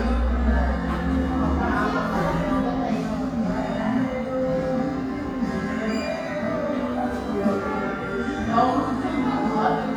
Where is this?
in a crowded indoor space